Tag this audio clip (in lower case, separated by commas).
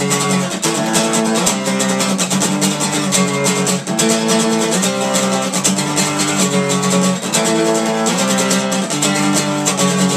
music